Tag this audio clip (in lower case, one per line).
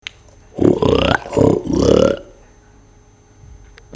animal
livestock